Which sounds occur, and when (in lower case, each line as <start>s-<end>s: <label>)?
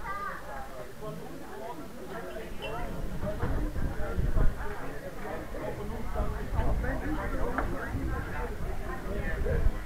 0.0s-9.8s: hubbub
0.0s-9.8s: wind
0.0s-9.8s: crowd
2.9s-4.6s: wind noise (microphone)
5.8s-9.7s: wind noise (microphone)